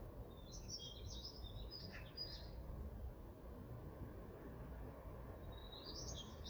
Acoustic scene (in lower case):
park